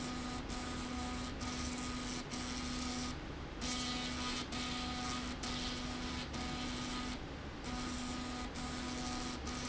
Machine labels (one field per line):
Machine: slide rail